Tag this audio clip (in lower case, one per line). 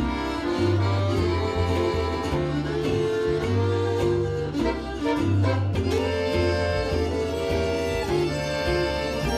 guitar
music
musical instrument
bluegrass